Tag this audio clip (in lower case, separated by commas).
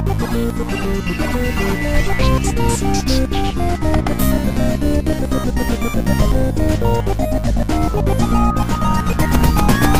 music, funny music